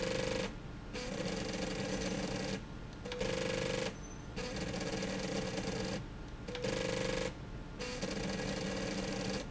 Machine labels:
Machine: slide rail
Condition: abnormal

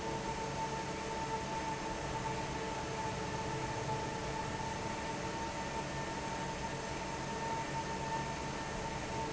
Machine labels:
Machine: fan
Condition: normal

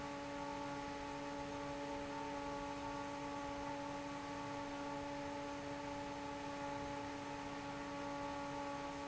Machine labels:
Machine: fan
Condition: normal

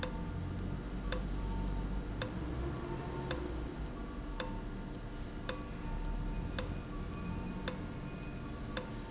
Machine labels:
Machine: valve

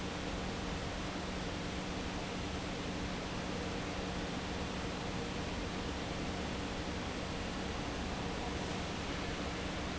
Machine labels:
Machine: fan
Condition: normal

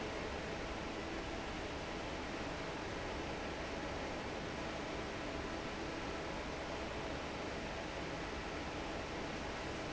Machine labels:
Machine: fan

